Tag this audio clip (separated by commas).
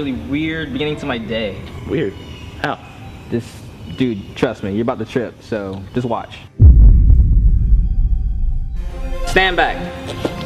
Speech, Music